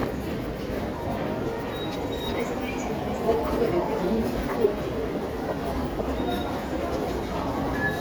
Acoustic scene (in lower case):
subway station